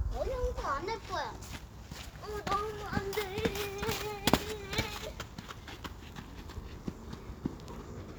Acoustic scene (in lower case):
park